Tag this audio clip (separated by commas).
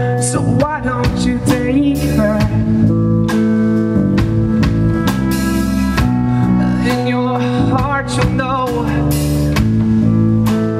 Dance music, Music